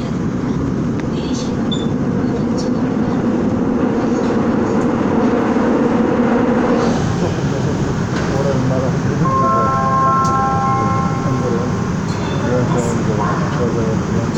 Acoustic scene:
subway train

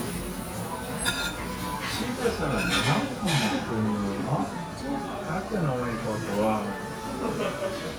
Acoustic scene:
restaurant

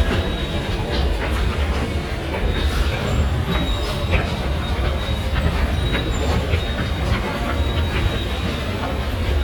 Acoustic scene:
subway station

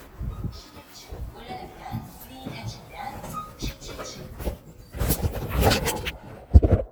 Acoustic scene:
elevator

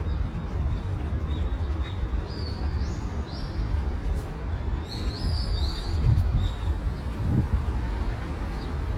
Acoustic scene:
park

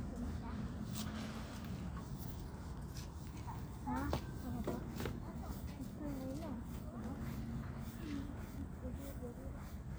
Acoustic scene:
park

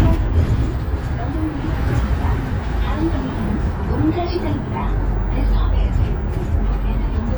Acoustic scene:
bus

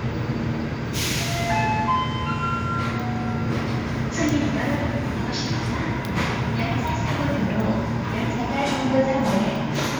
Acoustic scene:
subway station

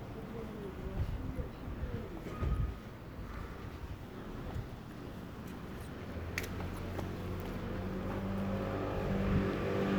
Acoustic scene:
residential area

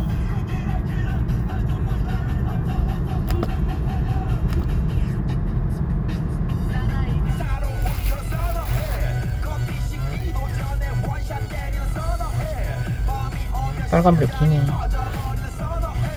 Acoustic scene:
car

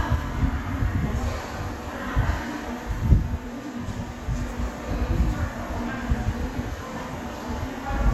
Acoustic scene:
subway station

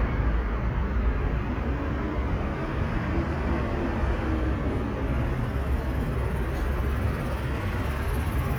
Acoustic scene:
residential area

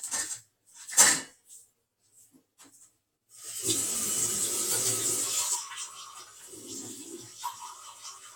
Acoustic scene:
kitchen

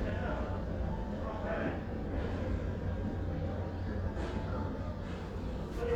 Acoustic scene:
crowded indoor space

